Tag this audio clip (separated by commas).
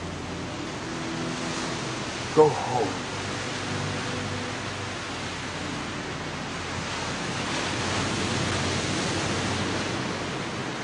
Music, Speech